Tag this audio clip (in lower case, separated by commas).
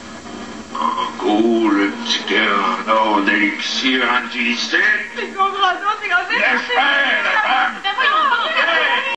speech